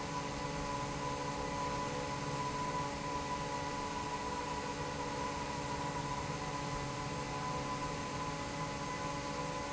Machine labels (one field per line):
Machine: fan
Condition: normal